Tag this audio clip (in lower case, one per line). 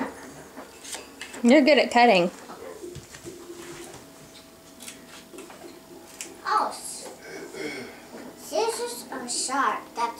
dishes, pots and pans